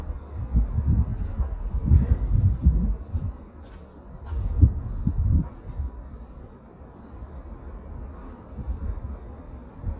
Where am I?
in a residential area